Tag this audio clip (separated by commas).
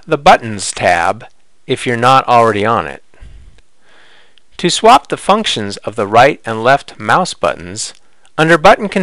Speech